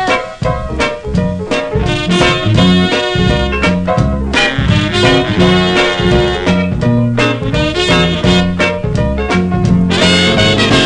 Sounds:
swing music, music

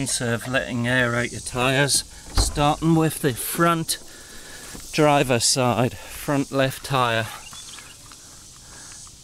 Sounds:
speech

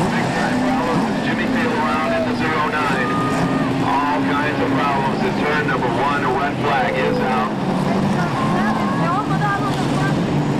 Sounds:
car, vehicle, speech, car passing by, motor vehicle (road)

